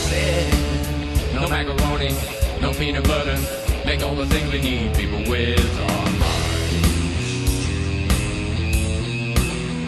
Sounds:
Heavy metal, Psychedelic rock, Rock music, Progressive rock, Punk rock, Music

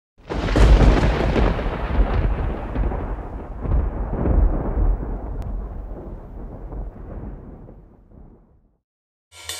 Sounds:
Music, Explosion

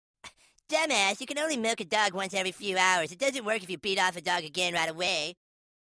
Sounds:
Speech

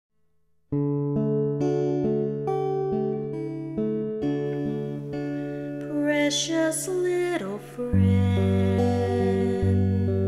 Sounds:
Music, Bass guitar

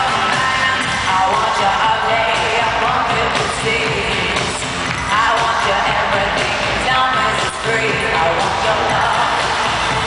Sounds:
Music

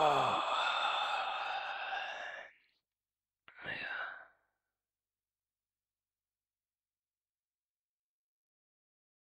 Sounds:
Sound effect

